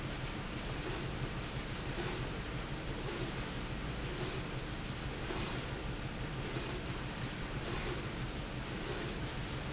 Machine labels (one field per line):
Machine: slide rail